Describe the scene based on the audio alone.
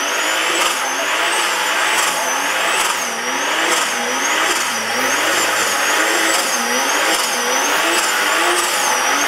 A car is skidding as its engine revs an over and over